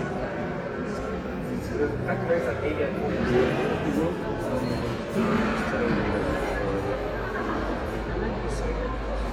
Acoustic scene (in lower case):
crowded indoor space